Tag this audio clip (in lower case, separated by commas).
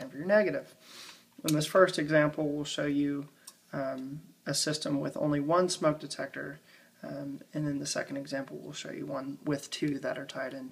speech